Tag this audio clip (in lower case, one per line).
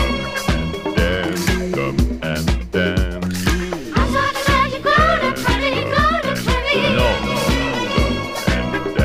music